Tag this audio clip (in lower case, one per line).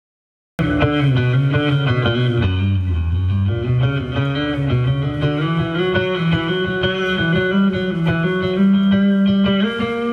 music
tapping (guitar technique)